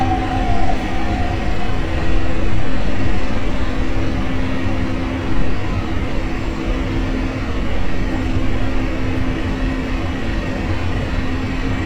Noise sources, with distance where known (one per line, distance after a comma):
unidentified impact machinery, near